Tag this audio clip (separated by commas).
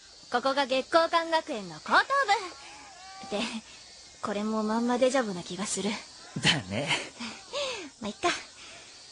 Speech